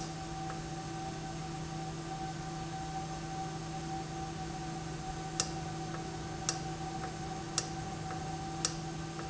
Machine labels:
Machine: valve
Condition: normal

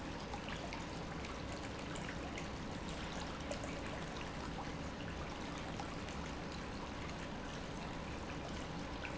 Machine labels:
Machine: pump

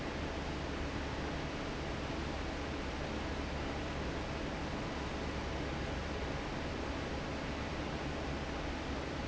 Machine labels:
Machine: fan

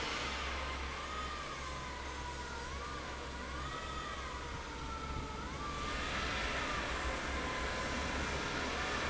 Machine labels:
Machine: fan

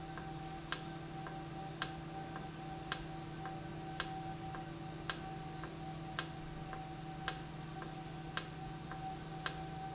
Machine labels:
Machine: valve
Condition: normal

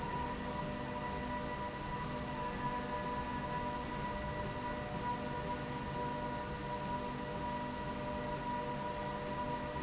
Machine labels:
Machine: slide rail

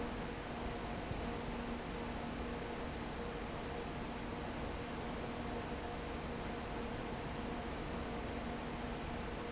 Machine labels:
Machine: fan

